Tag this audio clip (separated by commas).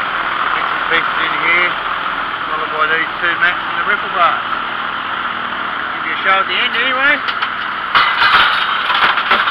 Speech